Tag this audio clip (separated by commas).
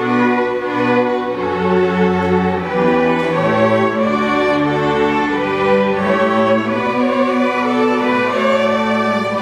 String section, Orchestra